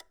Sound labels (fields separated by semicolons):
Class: switch; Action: being turned on; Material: plastic